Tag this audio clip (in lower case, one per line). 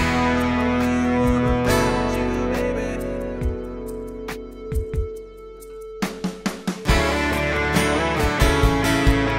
plucked string instrument
guitar
acoustic guitar
music
musical instrument
strum